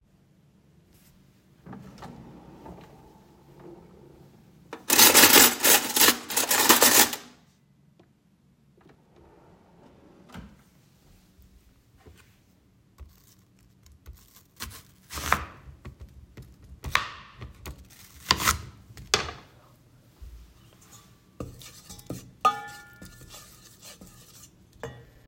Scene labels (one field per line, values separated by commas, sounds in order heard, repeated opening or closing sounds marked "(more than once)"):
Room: kitchen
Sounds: wardrobe or drawer (more than once), cutlery and dishes